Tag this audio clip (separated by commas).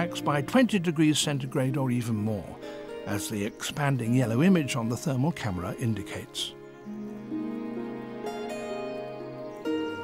Music, Speech